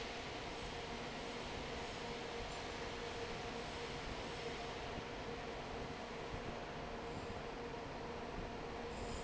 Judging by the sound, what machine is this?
fan